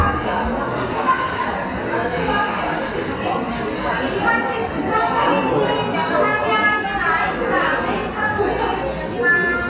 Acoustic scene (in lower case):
cafe